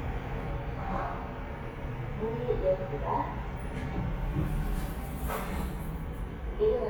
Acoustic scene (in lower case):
elevator